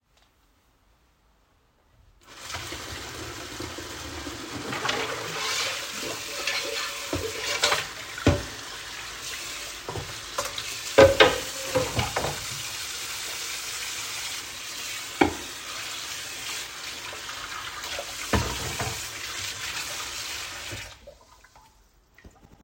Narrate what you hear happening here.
I recorded a kitchen scene with dishes and running water. The water was turned on while I handled dishes and cutlery. Both target sounds were clearly audible together for part of the scene.